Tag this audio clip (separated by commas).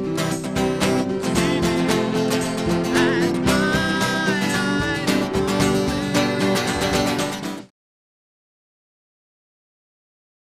Music